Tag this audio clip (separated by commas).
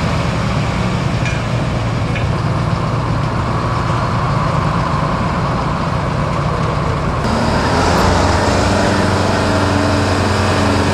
Vehicle, Speech, Truck